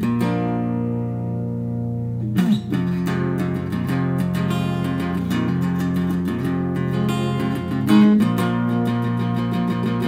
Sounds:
Musical instrument, Guitar, Music, Jazz, Plucked string instrument

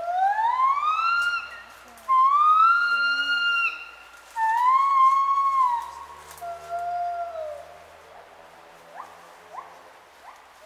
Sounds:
gibbon howling

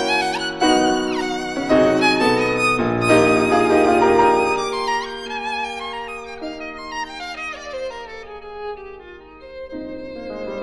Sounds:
fiddle, Music, Musical instrument

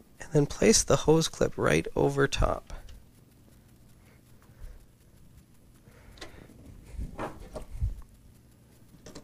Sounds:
Speech

